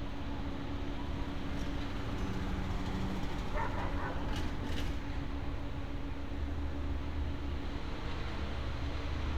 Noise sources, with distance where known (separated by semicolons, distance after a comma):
large-sounding engine, far; dog barking or whining, far